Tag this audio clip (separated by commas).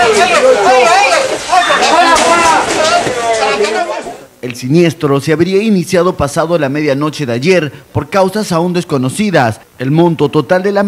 Speech